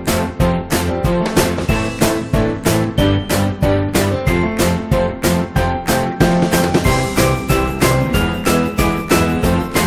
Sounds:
music
musical instrument
violin

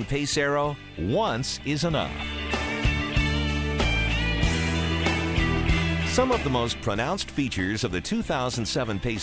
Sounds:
music
speech

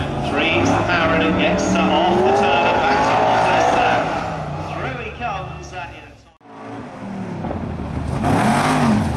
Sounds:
car passing by

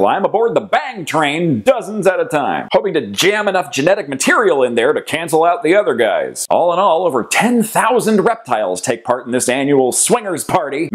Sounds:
speech

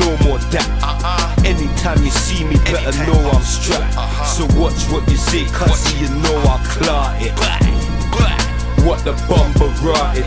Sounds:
music

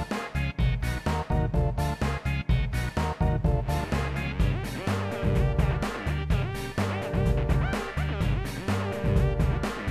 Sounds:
music

